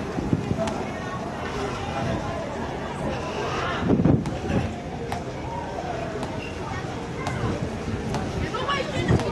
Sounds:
Wind noise (microphone), Wind

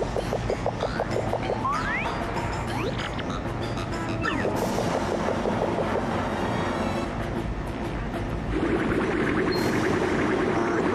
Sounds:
Music

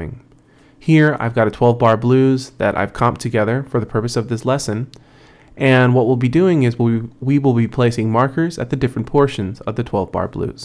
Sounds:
Speech

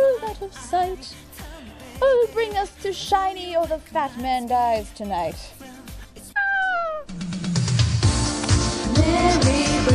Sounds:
Christmas music, Christian music, Speech, Music

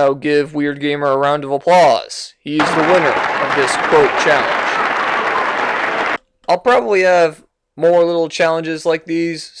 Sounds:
Speech

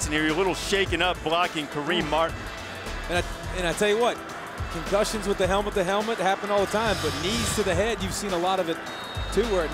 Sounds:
Music, Speech

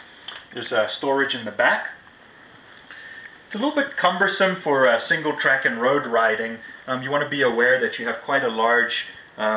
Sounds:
Speech

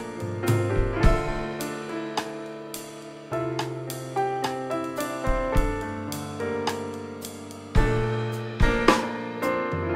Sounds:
Music

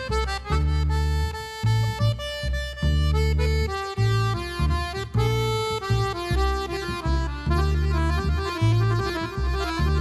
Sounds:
Accordion, Music

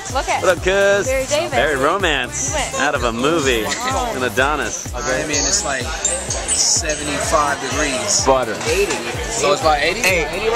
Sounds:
Music, Speech

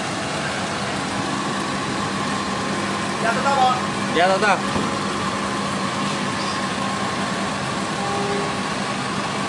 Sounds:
Speech

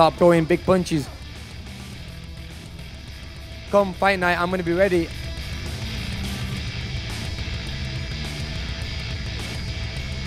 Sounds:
Music, Speech

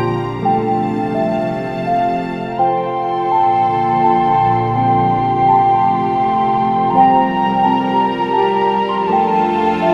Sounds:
Background music, Music

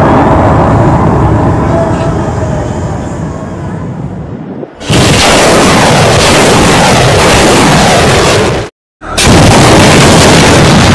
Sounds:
missile launch

